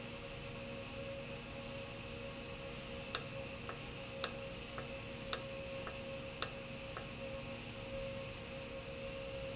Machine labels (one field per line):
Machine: valve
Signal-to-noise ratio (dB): 0 dB